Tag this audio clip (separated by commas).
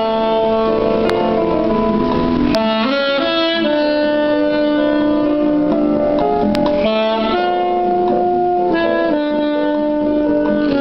Music, Musical instrument, Saxophone